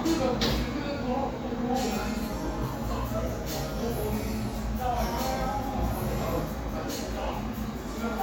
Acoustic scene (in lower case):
cafe